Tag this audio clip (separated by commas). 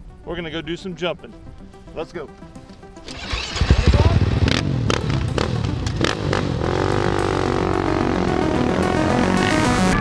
Vehicle, Speech, Music